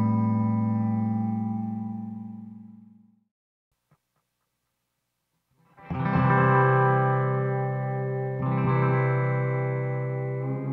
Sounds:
music, echo

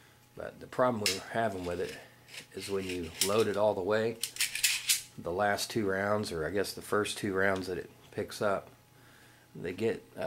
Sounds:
speech, inside a small room

